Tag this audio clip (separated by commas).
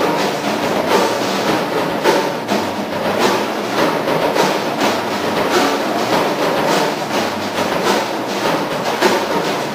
Wood block, Music